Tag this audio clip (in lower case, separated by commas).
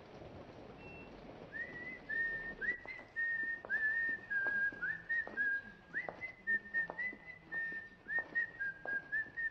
people whistling